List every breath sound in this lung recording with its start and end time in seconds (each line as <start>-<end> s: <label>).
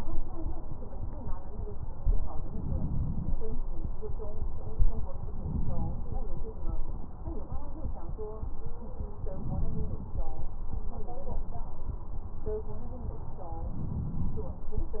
2.43-3.34 s: inhalation
5.41-6.09 s: inhalation
9.27-10.20 s: inhalation
13.76-14.69 s: inhalation